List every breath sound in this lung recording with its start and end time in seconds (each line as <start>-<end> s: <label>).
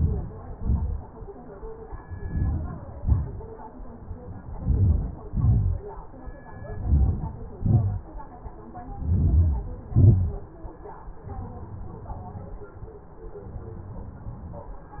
0.00-0.63 s: inhalation
0.70-1.18 s: exhalation
1.97-2.89 s: inhalation
2.90-3.68 s: exhalation
4.33-5.29 s: inhalation
5.35-5.98 s: exhalation
6.45-7.53 s: inhalation
7.57-8.29 s: exhalation
8.82-9.85 s: inhalation
9.92-10.95 s: exhalation